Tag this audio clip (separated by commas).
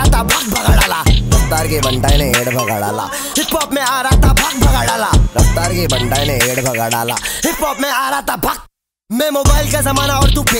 rapping